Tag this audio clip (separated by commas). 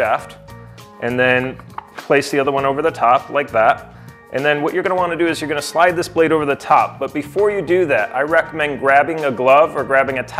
Speech, Music